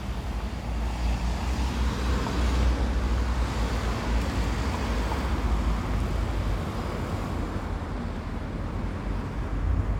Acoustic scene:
residential area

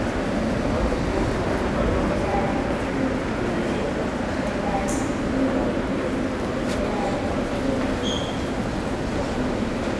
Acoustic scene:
subway station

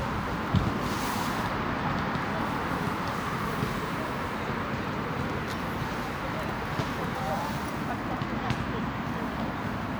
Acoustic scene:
residential area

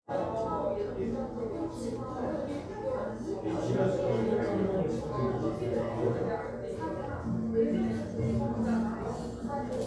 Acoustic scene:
crowded indoor space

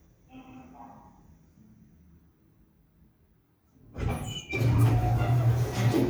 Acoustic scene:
elevator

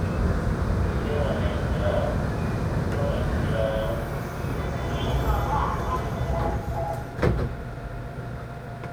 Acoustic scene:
subway train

